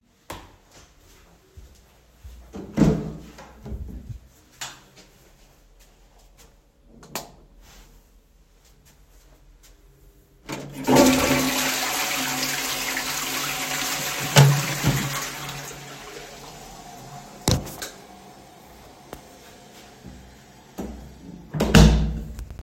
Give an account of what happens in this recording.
I walked into the toilet, turned on the light swtich, flushed the toilet and walked through he hallway